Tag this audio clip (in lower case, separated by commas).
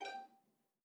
bowed string instrument, music, musical instrument